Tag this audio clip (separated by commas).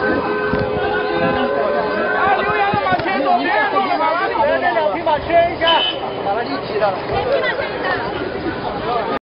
Speech